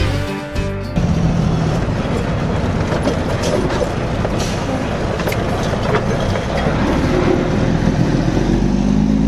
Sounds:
vehicle
outside, rural or natural
truck
motor vehicle (road)
music

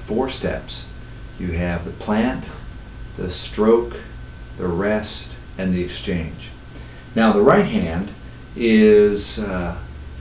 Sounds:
speech

